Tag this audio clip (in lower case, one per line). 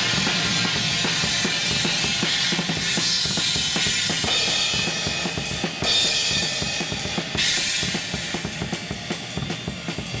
musical instrument
playing cymbal
cymbal
music